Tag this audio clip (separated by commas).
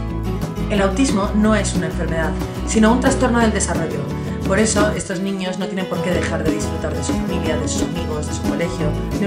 Speech, Music